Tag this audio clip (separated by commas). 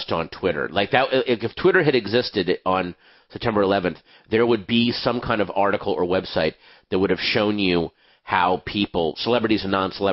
Speech